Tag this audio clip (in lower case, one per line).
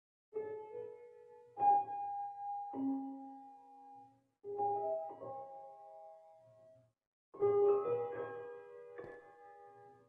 music